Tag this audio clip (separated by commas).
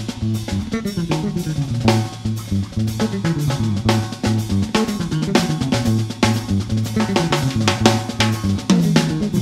Rimshot, Percussion, Snare drum, Drum, Drum kit, Bass drum